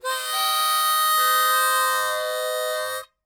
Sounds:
music, musical instrument, harmonica

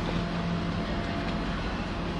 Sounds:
boat, vehicle

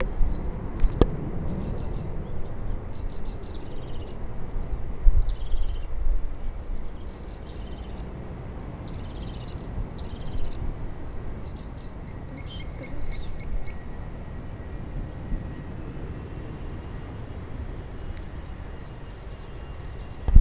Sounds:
bird, animal, bird song, wild animals

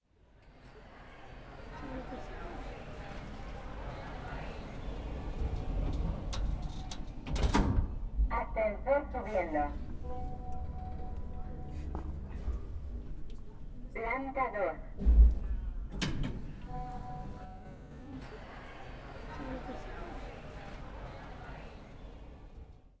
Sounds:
door, sliding door, home sounds

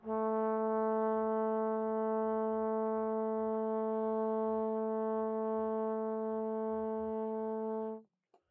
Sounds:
musical instrument, music, brass instrument

